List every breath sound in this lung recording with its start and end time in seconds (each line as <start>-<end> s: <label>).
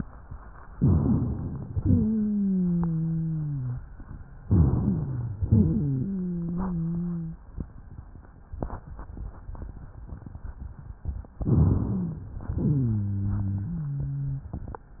0.70-1.63 s: inhalation
0.70-1.63 s: rhonchi
1.69-2.05 s: exhalation
1.69-3.83 s: wheeze
4.44-5.39 s: inhalation
4.44-5.39 s: rhonchi
5.41-6.11 s: exhalation
5.41-7.44 s: wheeze
11.44-12.43 s: inhalation
11.44-12.43 s: rhonchi
12.49-13.00 s: exhalation
12.49-14.53 s: wheeze